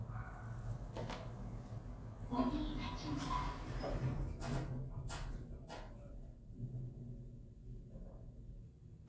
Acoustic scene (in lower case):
elevator